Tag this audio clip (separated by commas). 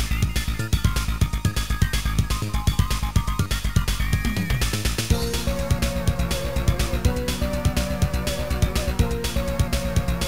Music, Soundtrack music